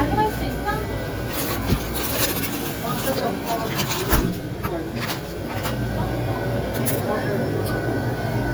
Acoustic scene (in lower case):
crowded indoor space